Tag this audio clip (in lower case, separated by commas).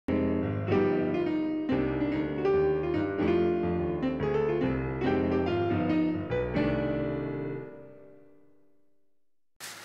music, piano